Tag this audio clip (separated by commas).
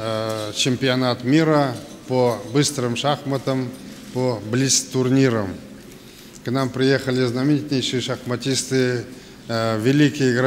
Speech, Male speech, monologue